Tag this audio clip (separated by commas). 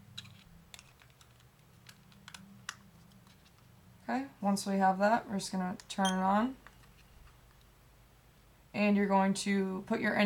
Speech